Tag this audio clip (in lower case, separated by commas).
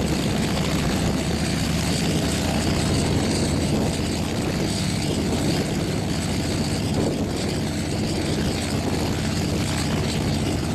whoosh